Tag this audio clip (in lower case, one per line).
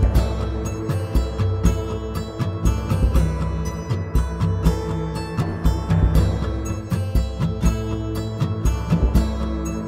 music